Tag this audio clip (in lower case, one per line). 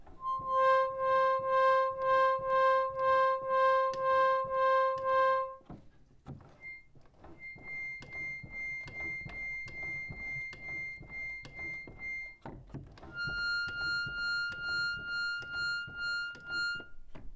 musical instrument
keyboard (musical)
music
organ